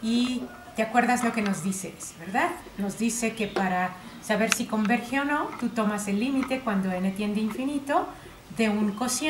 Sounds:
Speech

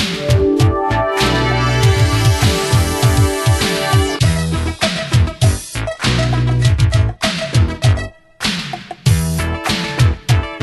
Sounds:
Music

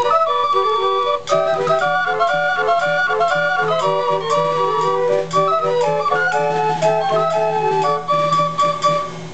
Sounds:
Music

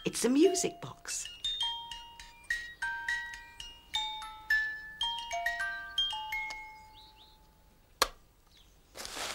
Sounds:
Speech, Animal, Music

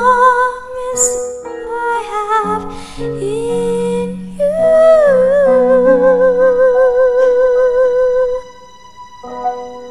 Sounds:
Music, Christian music

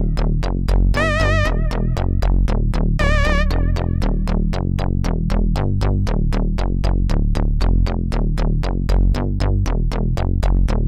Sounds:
Music

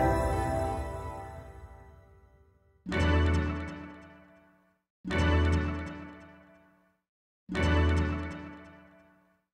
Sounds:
Music

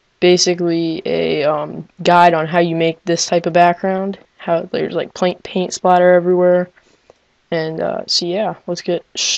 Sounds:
Speech

